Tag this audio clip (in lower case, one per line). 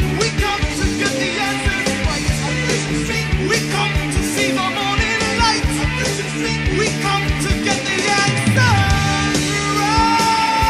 psychedelic rock
music